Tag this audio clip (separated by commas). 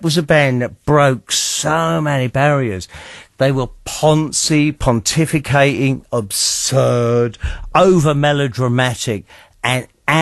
Speech